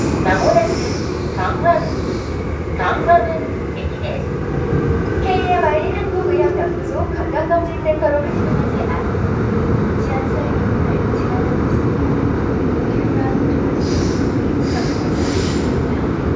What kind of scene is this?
subway train